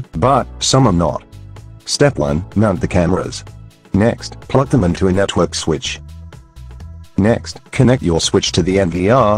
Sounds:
Speech

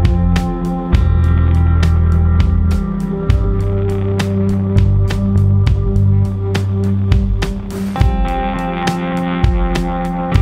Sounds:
Music

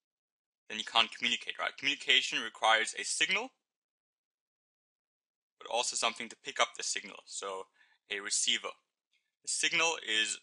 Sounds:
Speech

